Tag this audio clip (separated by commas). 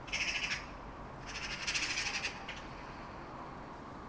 Bird, Animal, Wild animals